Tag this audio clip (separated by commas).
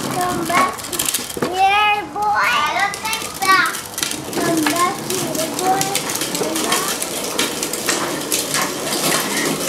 Speech, Children playing, kid speaking